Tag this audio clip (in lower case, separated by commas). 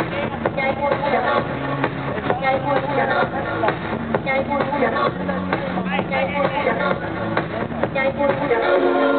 music, speech